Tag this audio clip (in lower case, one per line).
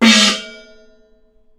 musical instrument
percussion
music
gong